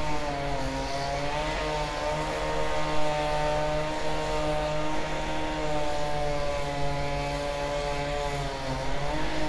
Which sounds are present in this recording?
unidentified powered saw